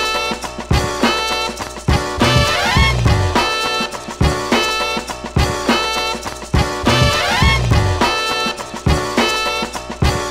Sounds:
music

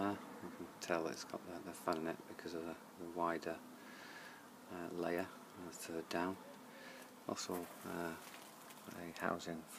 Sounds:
speech

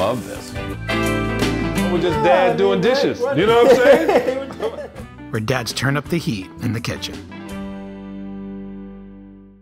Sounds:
music
speech

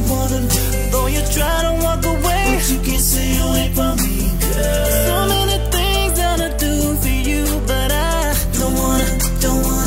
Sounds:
music
rhythm and blues

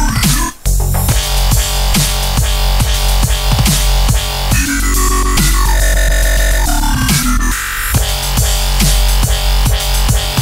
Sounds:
music

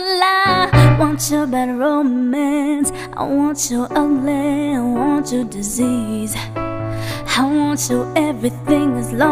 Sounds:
music
female singing

